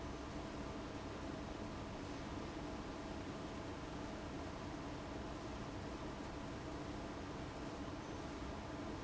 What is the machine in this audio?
fan